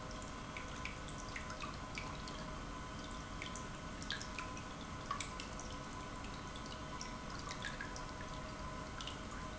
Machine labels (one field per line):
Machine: pump